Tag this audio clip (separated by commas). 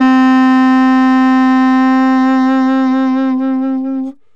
Wind instrument, Musical instrument, Music